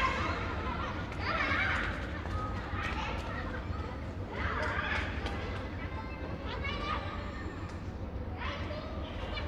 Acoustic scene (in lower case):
park